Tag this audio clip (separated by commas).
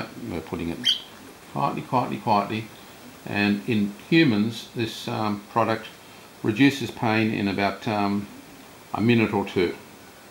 inside a small room, Speech, Bird